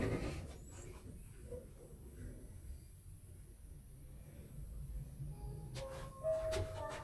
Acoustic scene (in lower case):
elevator